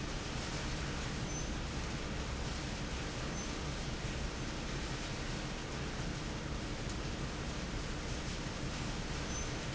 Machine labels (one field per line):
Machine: fan